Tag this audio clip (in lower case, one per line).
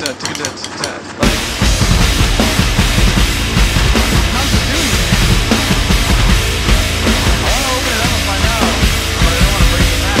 music
musical instrument
drum kit
speech
bass drum
drum